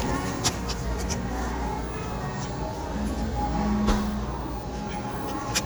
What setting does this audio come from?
cafe